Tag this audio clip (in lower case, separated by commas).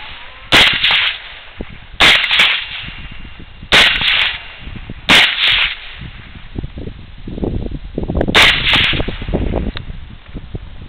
machine gun shooting, machine gun